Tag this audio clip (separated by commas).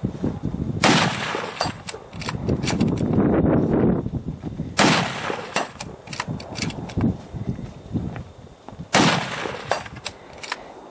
outside, rural or natural